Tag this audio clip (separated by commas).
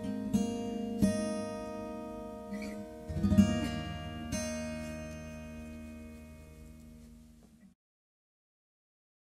Plucked string instrument, Music, Guitar, Acoustic guitar, Musical instrument